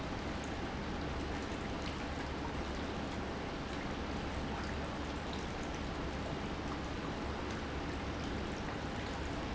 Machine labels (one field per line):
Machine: pump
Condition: normal